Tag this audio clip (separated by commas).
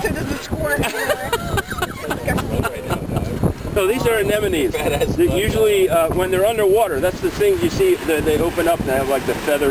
outside, rural or natural, Speech